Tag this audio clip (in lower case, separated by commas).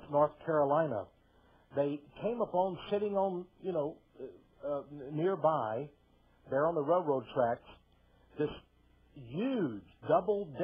speech